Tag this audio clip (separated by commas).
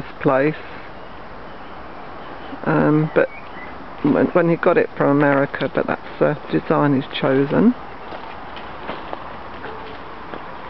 Speech